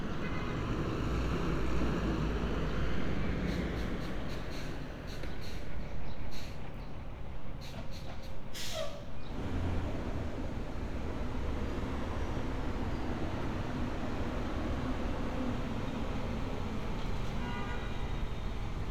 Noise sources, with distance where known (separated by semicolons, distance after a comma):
large-sounding engine; car horn, far